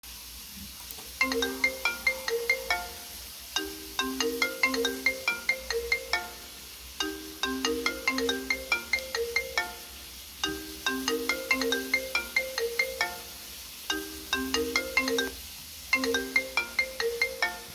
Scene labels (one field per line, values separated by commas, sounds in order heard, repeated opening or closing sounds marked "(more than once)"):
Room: bedroom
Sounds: running water, phone ringing